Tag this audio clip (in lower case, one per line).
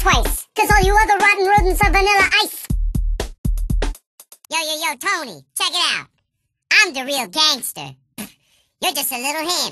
music
speech